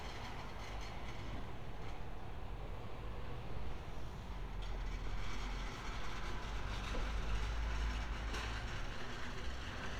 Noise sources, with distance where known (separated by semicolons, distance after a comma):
engine of unclear size